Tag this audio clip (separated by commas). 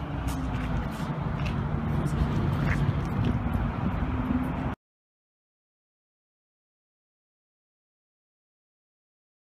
Silence, outside, urban or man-made